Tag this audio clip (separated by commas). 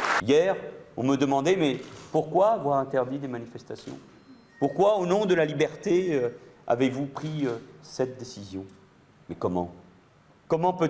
Speech